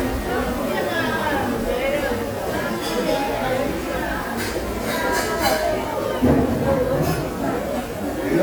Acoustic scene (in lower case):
restaurant